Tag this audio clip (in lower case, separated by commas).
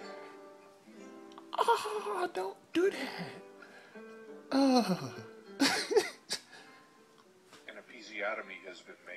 music, speech, inside a small room